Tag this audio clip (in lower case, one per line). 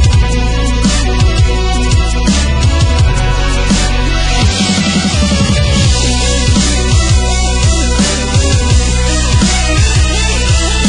music
sound effect